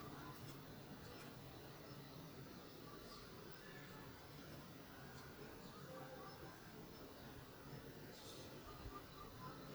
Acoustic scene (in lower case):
park